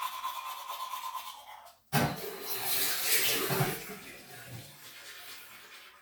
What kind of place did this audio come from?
restroom